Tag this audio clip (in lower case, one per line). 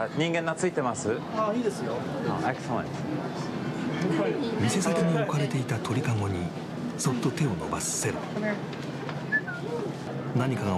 speech